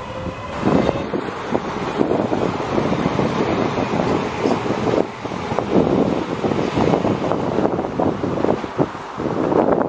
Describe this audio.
Passing vehicle and wind blowing